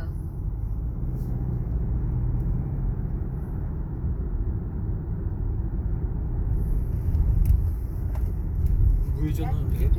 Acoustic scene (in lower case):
car